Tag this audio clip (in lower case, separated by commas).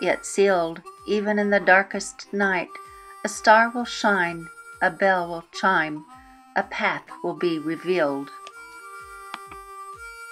speech, music